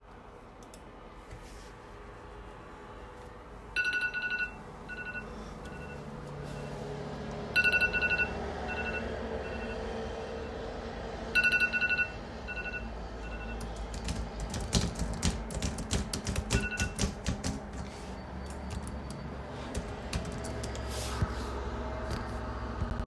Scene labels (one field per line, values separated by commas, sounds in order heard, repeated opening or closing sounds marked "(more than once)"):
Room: office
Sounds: phone ringing, keyboard typing